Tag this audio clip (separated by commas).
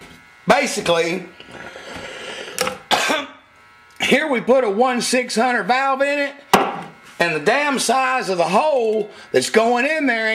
Speech, inside a small room